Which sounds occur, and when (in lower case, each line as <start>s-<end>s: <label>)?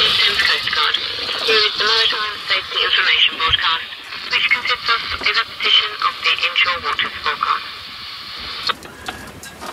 0.0s-0.9s: radio
0.0s-1.0s: woman speaking
0.0s-9.7s: boat
0.0s-9.7s: water
1.1s-1.5s: generic impact sounds
1.3s-3.9s: radio
1.4s-3.9s: woman speaking
3.4s-3.6s: generic impact sounds
4.3s-5.4s: woman speaking
4.3s-5.4s: radio
5.0s-5.3s: generic impact sounds
5.6s-7.6s: woman speaking
5.6s-7.6s: radio
8.6s-9.7s: generic impact sounds